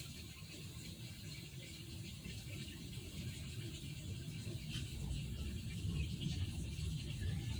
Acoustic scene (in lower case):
park